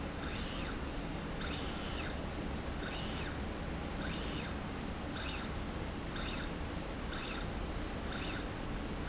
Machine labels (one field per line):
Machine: slide rail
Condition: normal